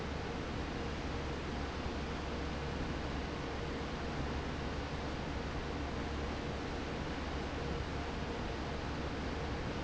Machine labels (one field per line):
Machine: fan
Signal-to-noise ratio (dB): -6 dB